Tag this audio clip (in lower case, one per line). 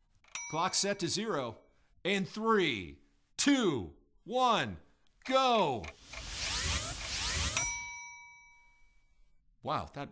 speech